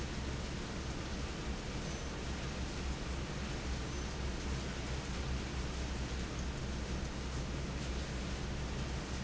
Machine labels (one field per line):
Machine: fan